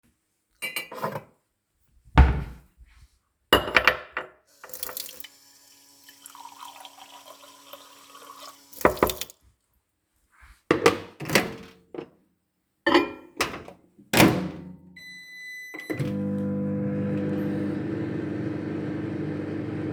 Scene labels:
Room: kitchen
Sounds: cutlery and dishes, door, wardrobe or drawer, running water, microwave

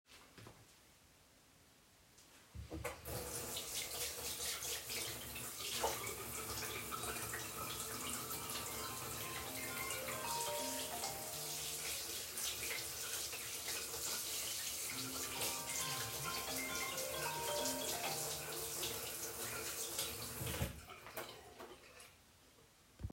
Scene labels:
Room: bathroom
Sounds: running water, phone ringing

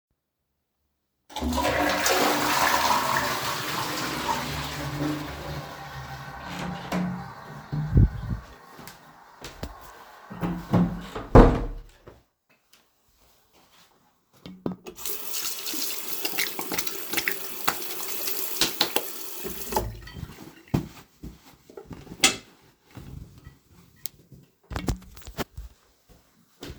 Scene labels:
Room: lavatory, hallway, bathroom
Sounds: toilet flushing, door (more than once), footsteps, running water

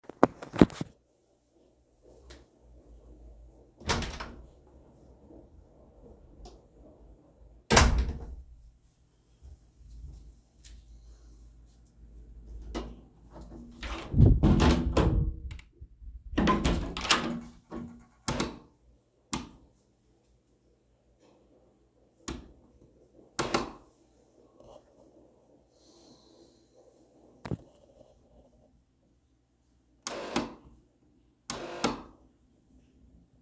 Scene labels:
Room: bathroom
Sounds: door (more than once), light switch, footsteps

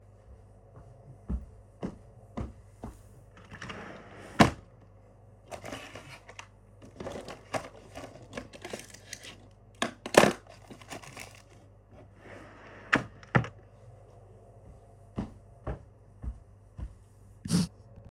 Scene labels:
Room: living room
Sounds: footsteps, wardrobe or drawer (more than once)

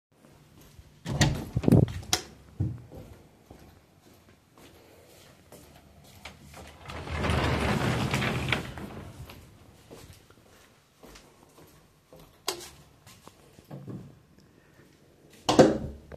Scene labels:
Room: living room, bedroom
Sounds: door (more than once), light switch, footsteps, wardrobe or drawer

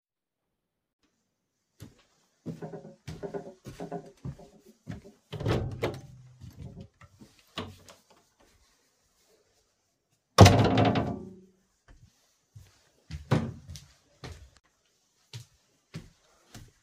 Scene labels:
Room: hallway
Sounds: footsteps, door (more than once)

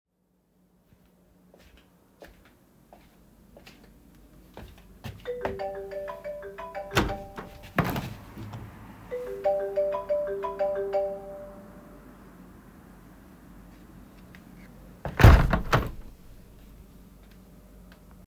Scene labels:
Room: bedroom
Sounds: footsteps, phone ringing, window (more than once)

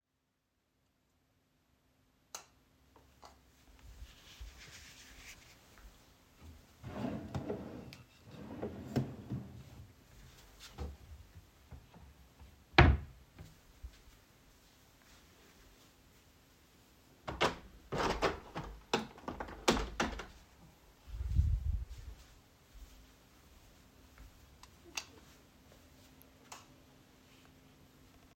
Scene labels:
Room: bedroom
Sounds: light switch, wardrobe or drawer (more than once), window

